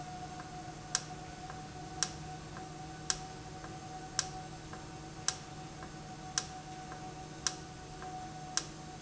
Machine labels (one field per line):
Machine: valve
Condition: normal